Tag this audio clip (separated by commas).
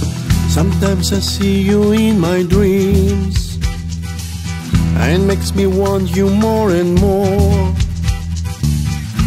Strum, Guitar, Music, Plucked string instrument, Musical instrument